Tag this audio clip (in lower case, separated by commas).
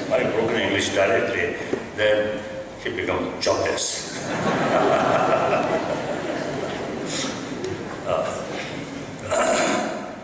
monologue, speech, male speech